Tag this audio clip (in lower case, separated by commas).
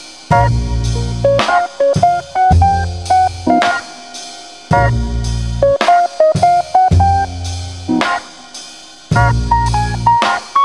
music